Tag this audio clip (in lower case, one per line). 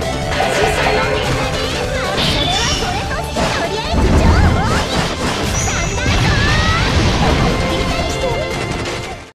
music
speech